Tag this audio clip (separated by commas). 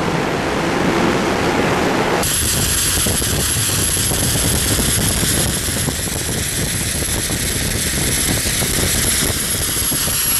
Bicycle, Vehicle